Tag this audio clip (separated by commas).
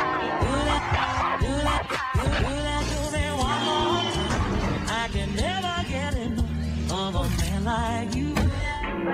Music